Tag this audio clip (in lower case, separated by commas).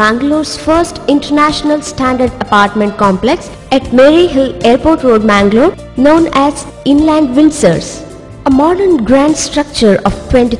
speech, music, woman speaking